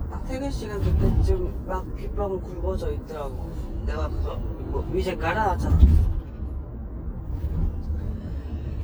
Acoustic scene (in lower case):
car